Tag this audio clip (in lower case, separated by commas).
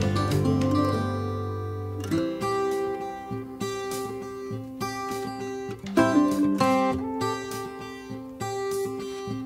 acoustic guitar, music